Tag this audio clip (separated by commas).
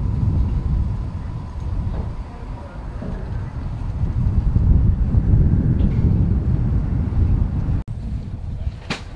Speech, outside, urban or man-made